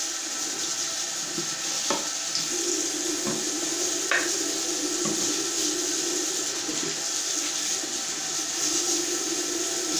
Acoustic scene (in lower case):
restroom